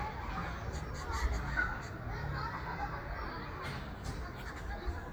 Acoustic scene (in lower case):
park